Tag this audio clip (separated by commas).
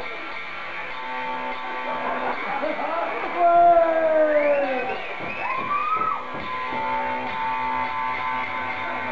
Musical instrument, Guitar, Strum, Plucked string instrument, Music, Electric guitar